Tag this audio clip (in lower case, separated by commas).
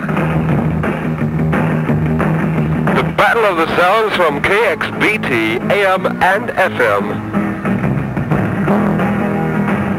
music, radio, speech